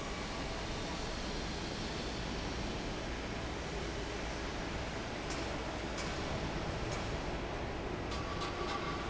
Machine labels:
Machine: fan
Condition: normal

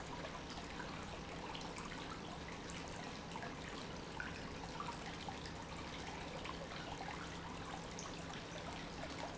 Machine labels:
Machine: pump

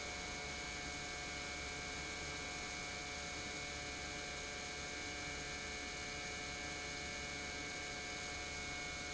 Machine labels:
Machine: pump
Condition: normal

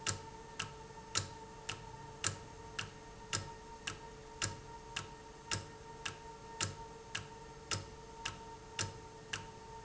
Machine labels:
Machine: valve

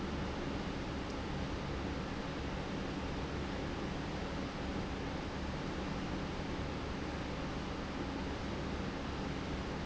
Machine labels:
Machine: pump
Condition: normal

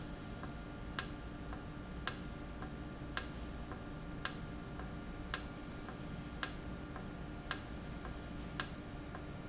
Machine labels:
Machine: valve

